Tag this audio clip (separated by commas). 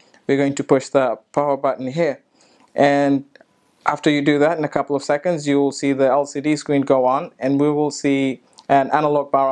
Speech